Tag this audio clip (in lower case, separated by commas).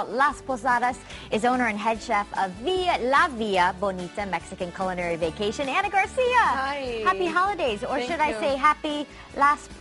music, speech